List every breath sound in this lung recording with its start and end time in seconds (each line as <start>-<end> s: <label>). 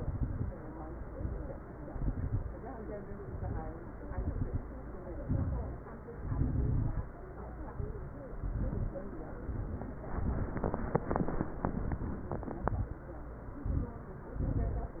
0.00-0.53 s: exhalation
0.00-0.53 s: crackles
1.06-1.71 s: inhalation
1.06-1.71 s: crackles
1.88-2.52 s: exhalation
1.88-2.52 s: crackles
2.98-3.63 s: inhalation
2.98-3.63 s: crackles
4.03-4.67 s: exhalation
4.03-4.67 s: crackles
5.23-5.87 s: inhalation
5.23-5.87 s: crackles
6.21-7.05 s: exhalation
6.21-7.05 s: crackles
7.73-8.38 s: inhalation
7.73-8.38 s: crackles
8.40-9.04 s: exhalation
8.40-9.04 s: crackles
12.43-13.07 s: exhalation
12.43-13.07 s: crackles
13.53-14.17 s: inhalation
13.53-14.17 s: crackles
14.39-15.00 s: exhalation
14.39-15.00 s: crackles